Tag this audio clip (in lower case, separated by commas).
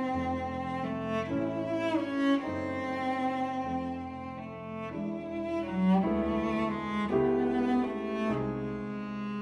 musical instrument, music